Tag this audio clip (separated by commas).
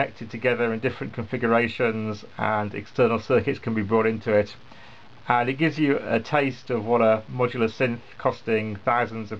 Speech